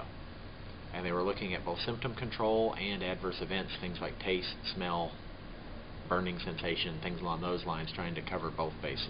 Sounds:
speech

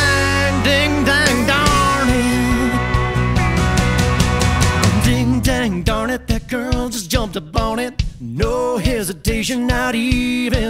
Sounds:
music

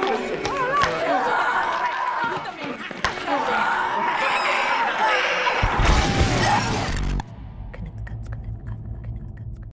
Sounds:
speech, music

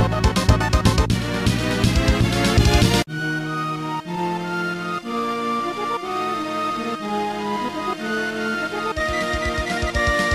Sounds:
video game music, music

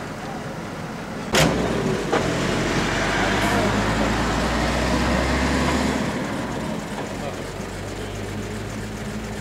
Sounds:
motor vehicle (road), car, roadway noise, vehicle, speech, truck

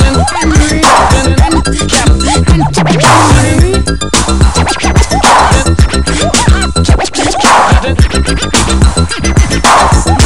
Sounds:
sampler, scratching (performance technique), music

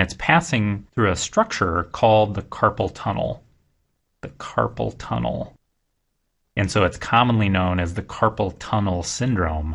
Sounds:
speech, monologue

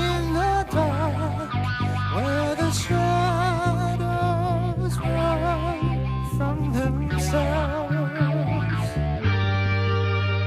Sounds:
progressive rock, musical instrument, music

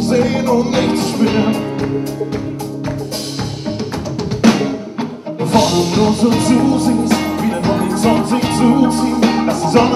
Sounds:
plucked string instrument, musical instrument, music, guitar

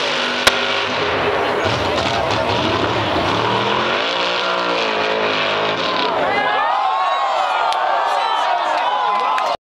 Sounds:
car, vehicle, speech

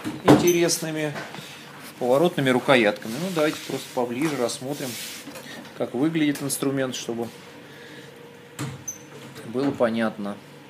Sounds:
speech, tools

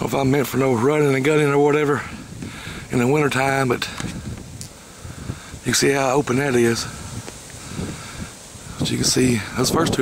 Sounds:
outside, rural or natural, speech

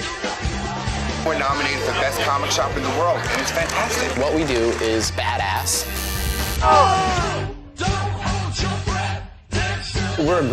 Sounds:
speech, music

